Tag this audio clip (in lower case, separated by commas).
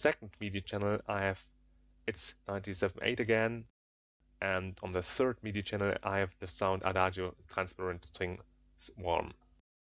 speech